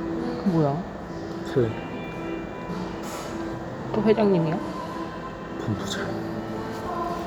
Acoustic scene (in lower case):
cafe